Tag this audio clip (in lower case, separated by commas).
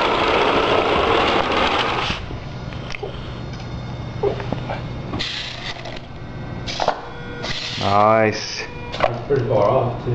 speech